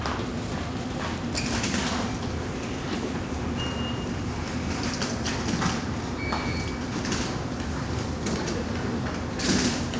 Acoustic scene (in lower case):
subway station